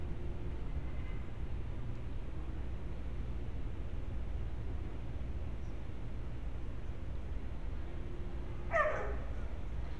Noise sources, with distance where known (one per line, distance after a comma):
dog barking or whining, near